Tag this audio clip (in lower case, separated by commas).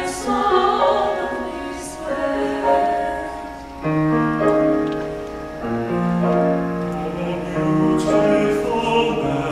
choir, male singing, female singing, music